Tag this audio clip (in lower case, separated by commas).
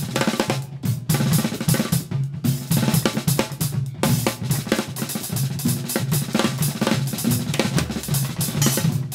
percussion, music, musical instrument, hi-hat, drum kit, drum